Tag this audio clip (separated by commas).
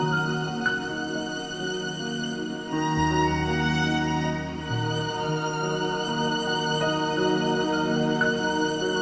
Music, Musical instrument, Violin